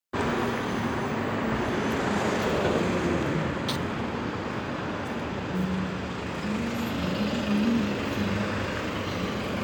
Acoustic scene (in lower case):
street